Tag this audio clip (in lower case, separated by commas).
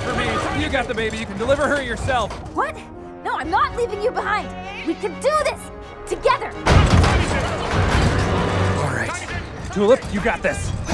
music, speech